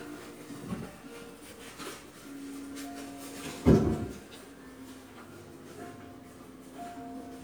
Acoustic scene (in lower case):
crowded indoor space